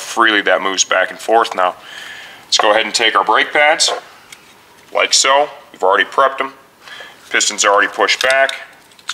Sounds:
speech, inside a large room or hall

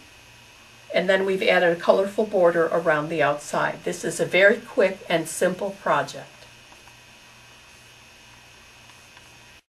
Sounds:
speech, inside a small room

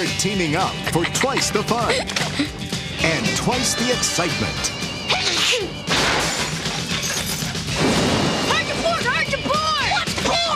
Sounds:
music, speech, outside, rural or natural

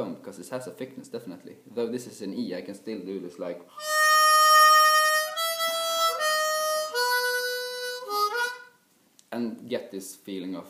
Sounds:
harmonica, music, inside a small room, speech

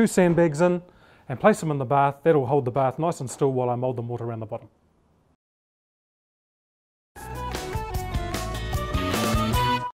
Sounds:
speech, music

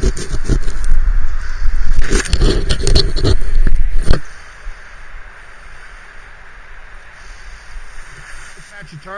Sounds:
outside, urban or man-made, speech

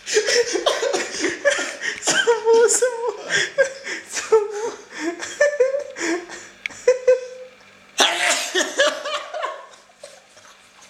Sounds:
speech, sneeze, inside a small room

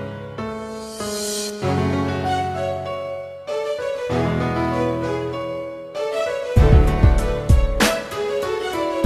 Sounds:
keyboard (musical), electric piano, piano

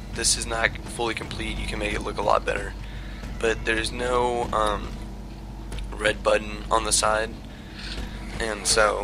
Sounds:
speech

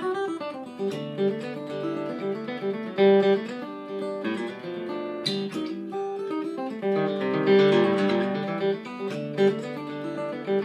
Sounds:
music

